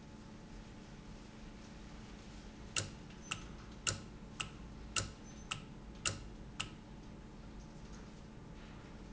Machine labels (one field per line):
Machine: valve